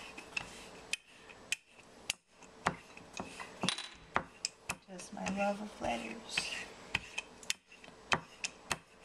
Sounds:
Speech

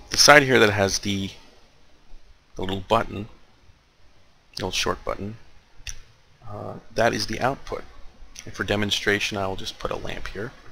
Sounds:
Speech

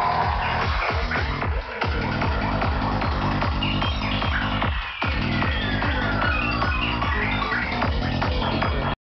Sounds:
Music

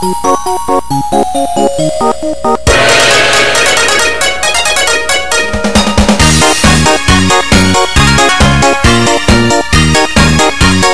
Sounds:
Music

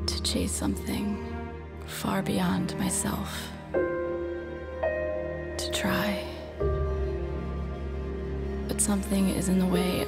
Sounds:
Music, Speech

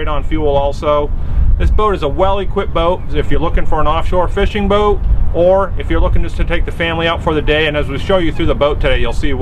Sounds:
Speech, Water vehicle

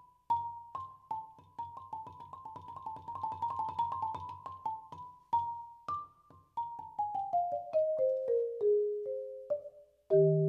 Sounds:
xylophone

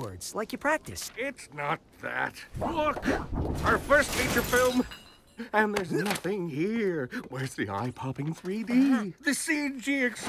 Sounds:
Speech

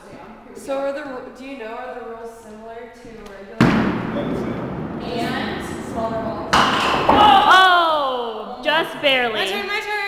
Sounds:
Speech

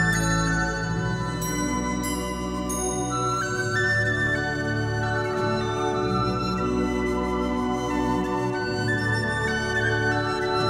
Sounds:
Flute, woodwind instrument

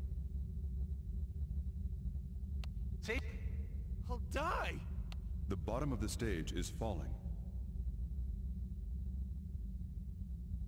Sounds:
Speech

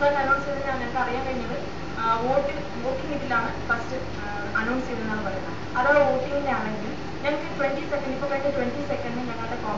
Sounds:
Television, Speech

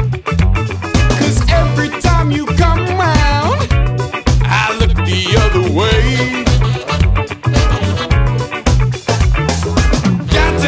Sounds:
Music

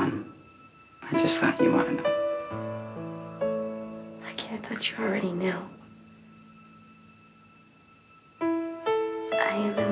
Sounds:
Speech, Music

